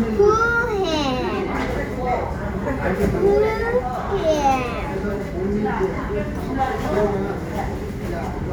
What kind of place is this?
crowded indoor space